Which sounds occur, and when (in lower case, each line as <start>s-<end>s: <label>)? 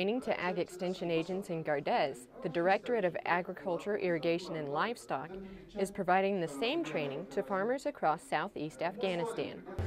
0.0s-9.8s: hubbub
0.0s-2.1s: woman speaking
2.4s-5.3s: woman speaking
5.8s-9.6s: woman speaking
9.7s-9.8s: woman speaking